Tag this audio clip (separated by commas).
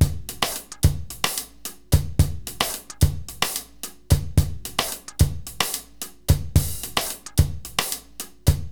Percussion, Musical instrument, Drum kit, Music